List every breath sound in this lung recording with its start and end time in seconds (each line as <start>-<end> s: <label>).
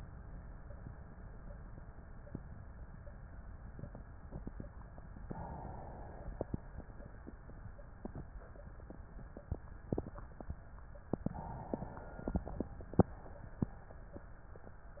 5.23-6.82 s: inhalation
11.21-12.80 s: inhalation